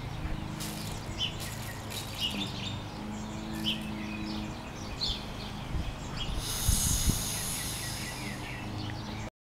Plastic rattling followed by compressed air releasing as a lawn mower runs in the distance and birds chirp in the background